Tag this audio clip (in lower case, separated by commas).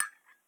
home sounds, dishes, pots and pans, glass, chink